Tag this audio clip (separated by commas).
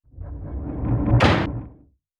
Door, home sounds, Sliding door